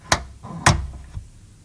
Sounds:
Tick

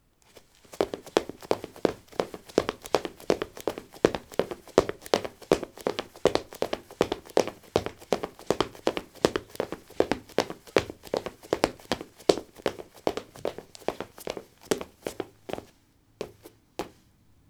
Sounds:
Run

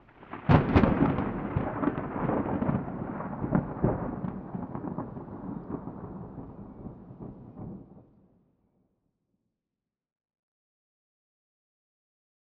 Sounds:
Thunder, Thunderstorm

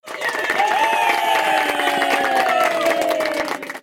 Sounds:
Cheering, Human group actions, Crowd, Applause

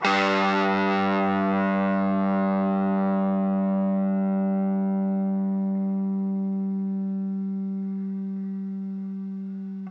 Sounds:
Guitar, Plucked string instrument, Musical instrument, Music

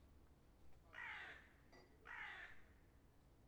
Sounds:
Wild animals, Bird, Animal

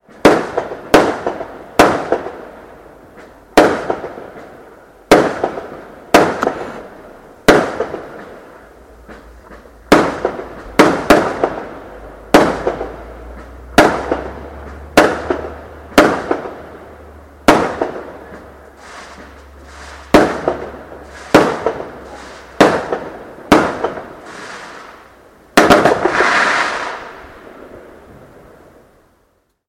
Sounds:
Explosion, Fireworks

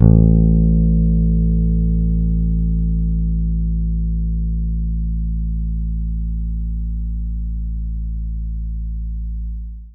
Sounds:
Music, Guitar, Plucked string instrument, Bass guitar, Musical instrument

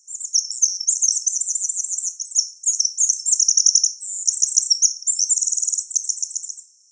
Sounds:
Bird, tweet, Wild animals, Animal, bird song

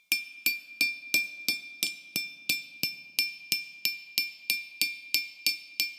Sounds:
Glass

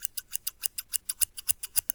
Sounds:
Scissors, Domestic sounds

